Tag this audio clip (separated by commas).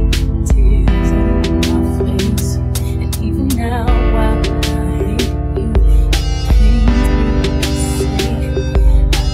Music